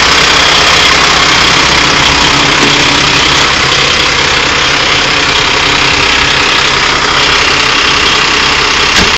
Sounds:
Vehicle, Truck

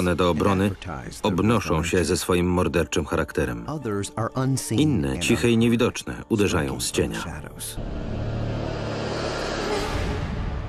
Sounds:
Music, Speech

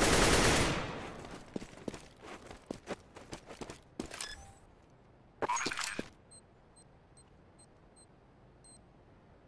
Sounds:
Speech

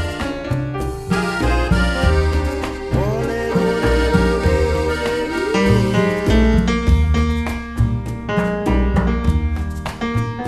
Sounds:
Musical instrument, Music

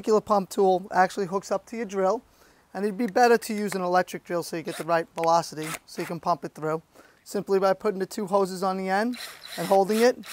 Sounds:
Speech

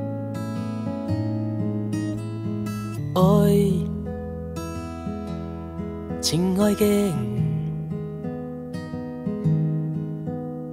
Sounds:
Music, Independent music

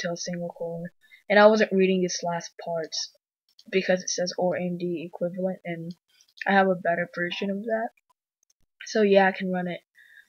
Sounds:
Speech

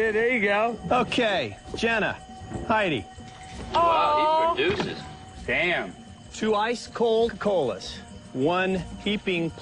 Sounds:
Speech, outside, rural or natural, Music

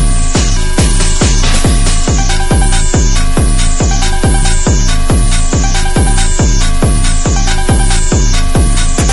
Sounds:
Techno, Music

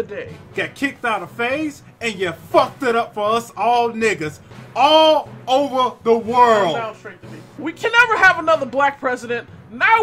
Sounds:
Speech, Music

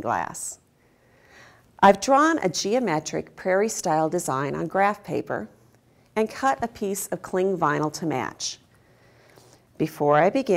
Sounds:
Speech

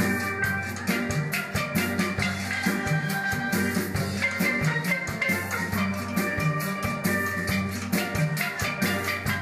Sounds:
Musical instrument, Drum, Music

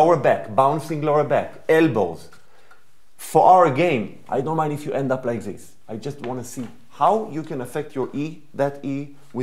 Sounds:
Speech

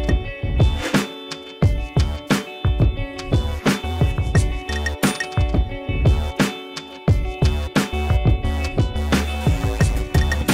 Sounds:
Music

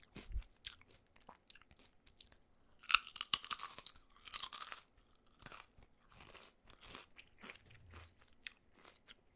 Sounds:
people eating crisps

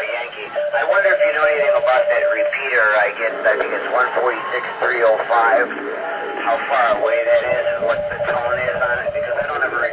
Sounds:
Radio, Speech

